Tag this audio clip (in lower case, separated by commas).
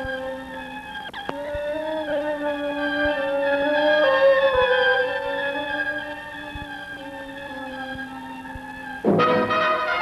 orchestra, music